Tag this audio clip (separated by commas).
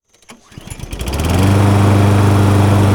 Engine starting, Engine